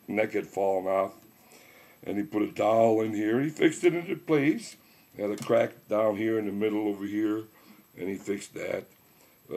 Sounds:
Speech

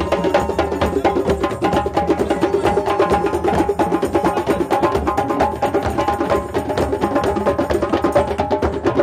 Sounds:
Music, Percussion

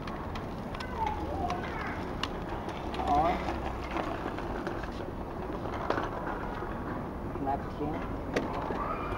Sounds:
Speech

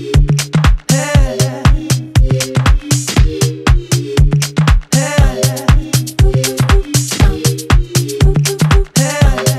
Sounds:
Music

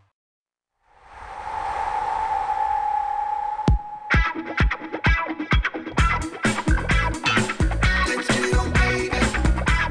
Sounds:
Music

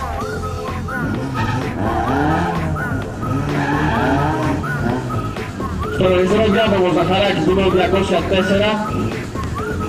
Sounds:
Race car, Car, Vehicle

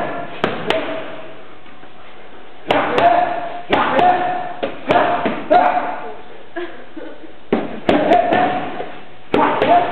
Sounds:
Speech

